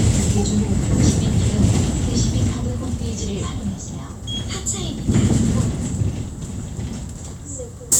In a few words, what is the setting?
bus